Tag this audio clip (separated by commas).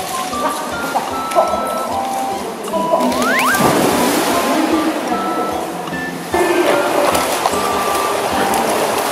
swimming